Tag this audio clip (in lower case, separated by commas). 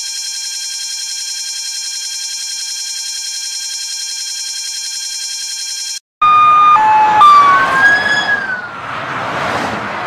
buzzer